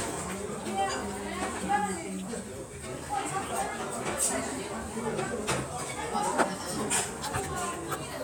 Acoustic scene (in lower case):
restaurant